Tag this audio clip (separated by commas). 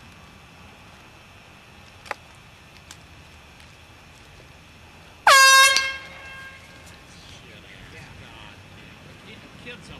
Speech